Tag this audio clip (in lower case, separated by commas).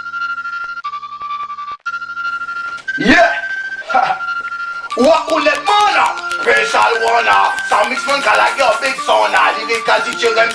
music